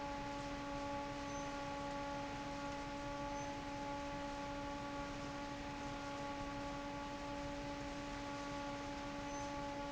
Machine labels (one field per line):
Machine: fan